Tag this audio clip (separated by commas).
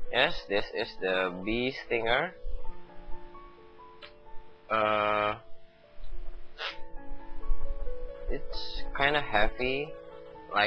Music, Speech